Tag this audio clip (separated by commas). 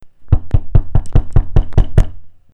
Door, home sounds, Knock